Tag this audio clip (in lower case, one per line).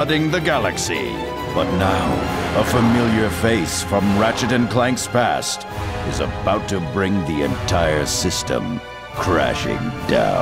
music
speech